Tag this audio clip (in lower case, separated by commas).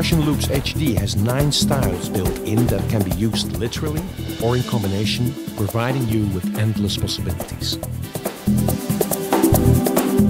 speech, music